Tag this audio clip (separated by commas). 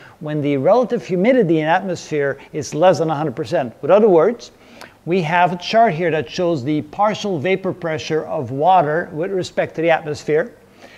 Speech